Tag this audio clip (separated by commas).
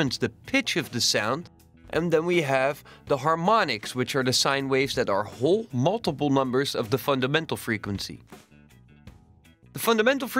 Music, Speech